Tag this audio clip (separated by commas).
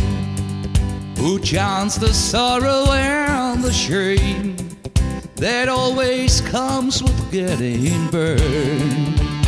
Music